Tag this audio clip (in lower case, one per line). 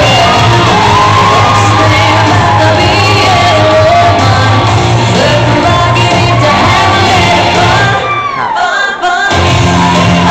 music
shout